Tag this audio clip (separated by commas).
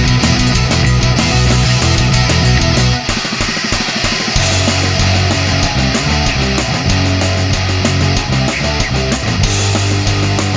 Music